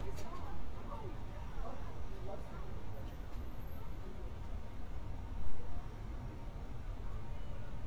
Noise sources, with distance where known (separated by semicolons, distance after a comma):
person or small group talking, far